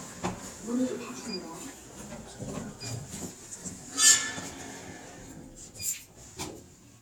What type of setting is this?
elevator